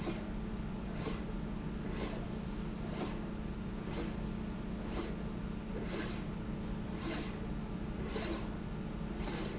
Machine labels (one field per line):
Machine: slide rail